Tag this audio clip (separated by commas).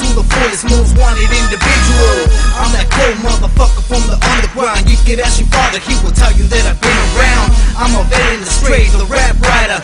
Music